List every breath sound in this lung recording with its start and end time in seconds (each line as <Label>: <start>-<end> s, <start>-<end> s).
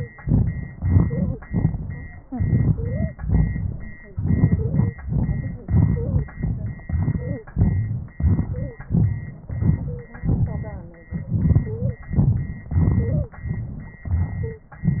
Inhalation: 0.86-1.50 s, 2.31-3.16 s, 4.15-4.96 s, 5.59-6.38 s, 6.88-7.53 s, 8.19-8.90 s, 9.49-10.20 s, 11.12-12.10 s, 12.74-13.41 s, 14.06-14.84 s
Exhalation: 0.23-0.81 s, 1.47-2.28 s, 3.19-4.14 s, 4.98-5.62 s, 6.38-6.89 s, 7.53-8.18 s, 8.92-9.48 s, 10.21-11.09 s, 12.14-12.73 s, 13.41-14.06 s
Stridor: 0.00-0.10 s, 1.04-1.41 s, 2.73-3.15 s, 4.54-4.98 s, 5.86-6.30 s, 7.06-7.50 s, 8.43-8.87 s, 9.85-10.29 s, 11.65-12.09 s, 13.02-13.46 s, 14.45-14.70 s